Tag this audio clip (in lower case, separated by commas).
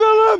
shout, human voice